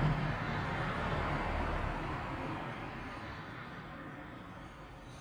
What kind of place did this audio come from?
street